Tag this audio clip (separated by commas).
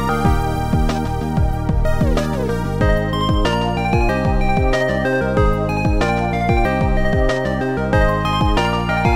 Music, Video game music